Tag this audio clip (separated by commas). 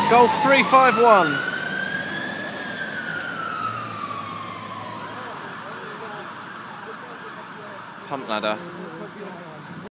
Speech